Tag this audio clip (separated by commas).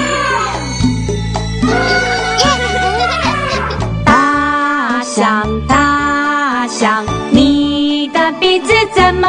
Music, Music for children